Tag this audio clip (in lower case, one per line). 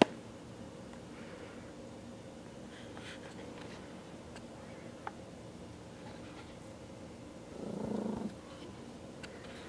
purr